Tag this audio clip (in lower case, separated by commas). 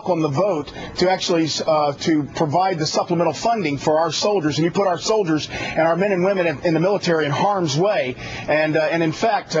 speech